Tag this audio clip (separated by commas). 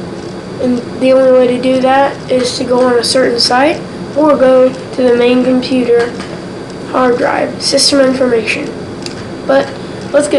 Speech